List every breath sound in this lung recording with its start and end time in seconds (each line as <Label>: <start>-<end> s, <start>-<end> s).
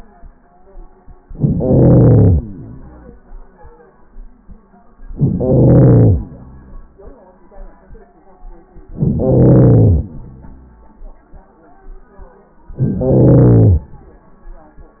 Inhalation: 1.24-2.38 s, 5.10-6.21 s, 8.91-10.05 s, 12.74-13.91 s
Exhalation: 2.34-3.56 s, 6.19-7.21 s, 10.01-11.26 s